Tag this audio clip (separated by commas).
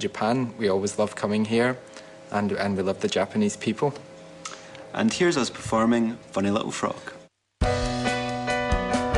Music, Speech